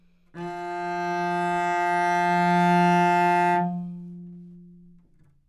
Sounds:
bowed string instrument, music, musical instrument

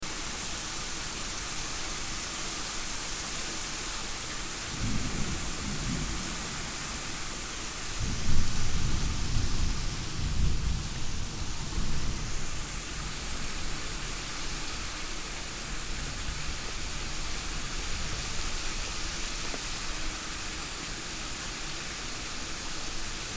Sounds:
rain, water, thunderstorm, thunder

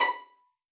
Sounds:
music, musical instrument, bowed string instrument

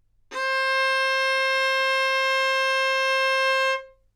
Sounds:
music, musical instrument, bowed string instrument

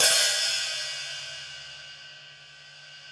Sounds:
percussion, hi-hat, musical instrument, music, cymbal

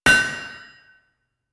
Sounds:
hammer, tools

